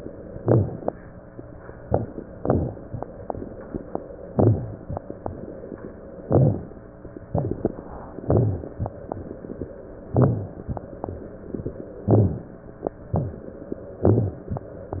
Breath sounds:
0.29-0.92 s: crackles
0.33-0.92 s: inhalation
1.78-2.28 s: crackles
1.79-2.28 s: inhalation
2.29-3.02 s: exhalation
2.30-3.03 s: crackles
4.25-4.81 s: inhalation
4.25-4.81 s: crackles
6.23-6.79 s: inhalation
6.23-6.79 s: crackles
7.25-7.81 s: inhalation
7.25-7.81 s: crackles
8.19-8.75 s: inhalation
8.19-8.75 s: crackles
10.14-10.71 s: inhalation
10.14-10.71 s: crackles
12.03-12.59 s: inhalation
12.03-12.59 s: crackles
13.09-13.49 s: inhalation
13.09-13.49 s: crackles
13.91-14.41 s: inhalation
13.91-14.41 s: crackles

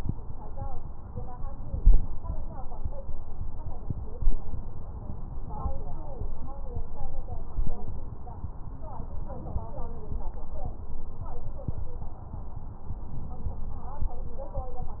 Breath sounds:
1.50-2.24 s: inhalation

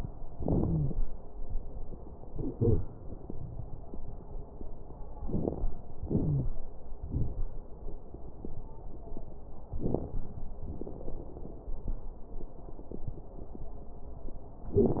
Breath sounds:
0.64-0.91 s: wheeze
5.18-5.68 s: inhalation
5.18-5.68 s: crackles
6.04-6.54 s: exhalation
6.23-6.54 s: wheeze

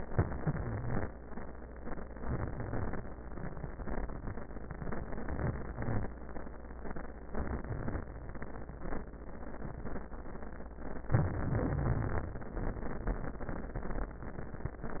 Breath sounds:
0.09-1.09 s: inhalation
0.09-1.09 s: wheeze
2.22-3.05 s: inhalation
5.28-6.11 s: inhalation
7.30-8.09 s: inhalation
11.11-12.33 s: inhalation
11.68-12.33 s: wheeze

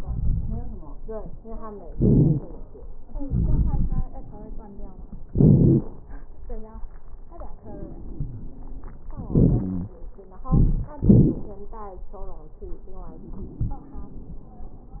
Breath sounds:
0.00-0.92 s: inhalation
0.00-0.92 s: crackles
1.90-2.42 s: exhalation
1.90-2.42 s: wheeze
3.22-4.06 s: inhalation
3.22-4.06 s: crackles
3.25-5.17 s: wheeze
5.28-5.90 s: exhalation
5.28-5.90 s: crackles
7.62-9.10 s: wheeze
9.20-9.97 s: inhalation
9.20-9.97 s: wheeze
10.50-10.94 s: exhalation
10.50-10.94 s: crackles
11.01-11.47 s: crackles
13.07-14.43 s: wheeze

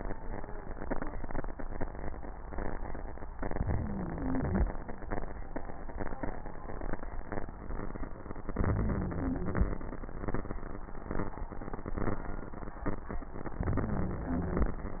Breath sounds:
3.36-4.63 s: inhalation
3.36-4.63 s: wheeze
8.51-9.78 s: inhalation
8.51-9.78 s: wheeze
13.59-14.86 s: inhalation
13.59-14.86 s: wheeze

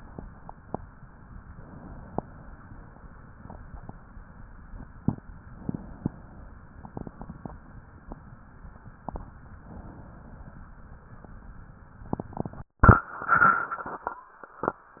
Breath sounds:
1.59-2.58 s: inhalation
5.56-6.55 s: inhalation
9.69-10.68 s: inhalation

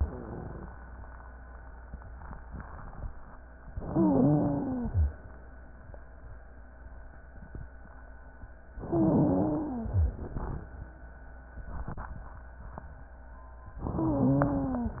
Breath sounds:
3.75-5.06 s: wheeze
3.75-5.26 s: inhalation
8.82-9.96 s: inhalation
8.82-9.96 s: wheeze
13.86-15.00 s: inhalation
13.86-15.00 s: wheeze

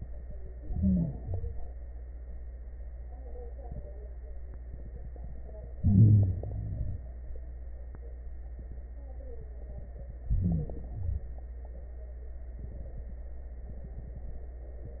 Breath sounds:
0.61-1.21 s: inhalation
0.61-1.21 s: wheeze
1.21-1.81 s: exhalation
1.21-1.81 s: crackles
5.76-6.37 s: inhalation
5.76-6.37 s: crackles
6.47-7.08 s: exhalation
6.47-7.08 s: crackles
10.27-10.87 s: inhalation
10.27-10.87 s: wheeze
10.88-11.49 s: exhalation
10.88-11.49 s: crackles

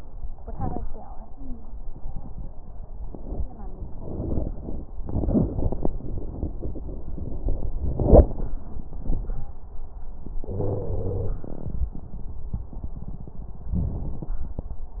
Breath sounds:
10.49-11.48 s: wheeze

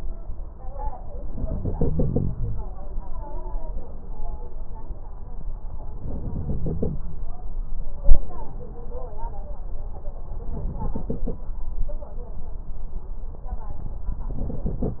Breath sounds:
1.26-2.66 s: inhalation
6.00-7.04 s: inhalation
10.53-11.39 s: inhalation
14.29-15.00 s: inhalation

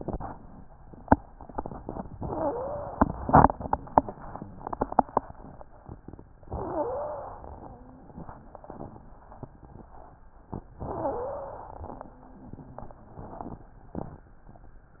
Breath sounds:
2.20-3.02 s: wheeze
6.53-7.34 s: wheeze
6.53-7.65 s: inhalation
10.81-11.71 s: wheeze
10.81-12.07 s: inhalation

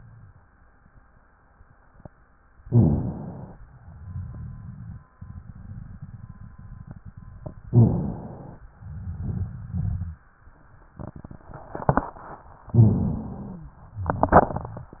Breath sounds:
2.60-3.56 s: inhalation
2.67-3.63 s: rhonchi
3.68-7.62 s: exhalation
7.68-8.64 s: inhalation
7.69-8.61 s: rhonchi
8.74-10.20 s: exhalation
8.76-10.26 s: rhonchi
12.70-13.78 s: inhalation
12.70-13.76 s: rhonchi

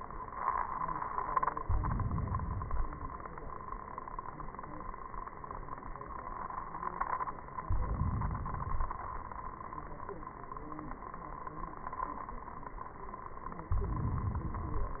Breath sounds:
1.61-2.74 s: inhalation
7.62-8.63 s: inhalation
8.64-9.65 s: exhalation
13.73-14.66 s: inhalation

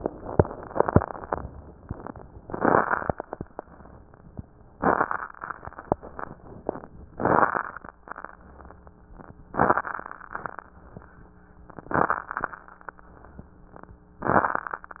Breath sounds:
2.42-3.11 s: inhalation
2.42-3.11 s: crackles
4.75-5.33 s: inhalation
4.75-5.33 s: crackles
7.15-7.93 s: inhalation
7.15-7.93 s: crackles
9.50-10.28 s: inhalation
9.50-10.28 s: crackles
11.75-12.27 s: inhalation
11.75-12.27 s: crackles
12.26-12.71 s: exhalation
12.29-12.71 s: crackles

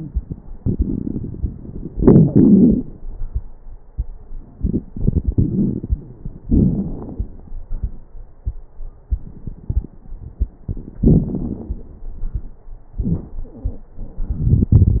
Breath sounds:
0.48-1.88 s: inhalation
0.48-1.88 s: crackles
1.91-3.00 s: exhalation
1.91-3.00 s: crackles
4.59-6.46 s: inhalation
4.59-6.46 s: crackles
6.47-7.99 s: exhalation
6.47-7.99 s: crackles
12.97-13.29 s: wheeze

